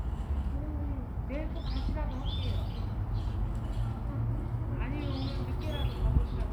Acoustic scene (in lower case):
park